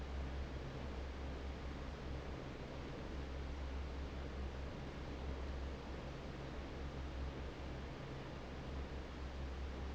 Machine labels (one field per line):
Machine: fan